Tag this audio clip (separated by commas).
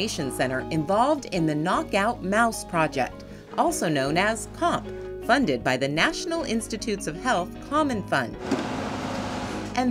Speech, Music